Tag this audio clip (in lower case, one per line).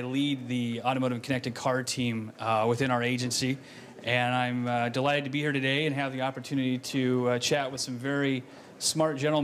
speech